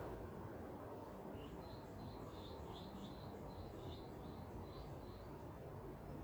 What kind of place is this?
park